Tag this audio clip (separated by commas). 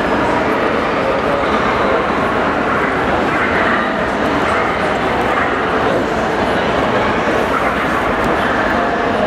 Dog, pets, Speech, Animal, Bow-wow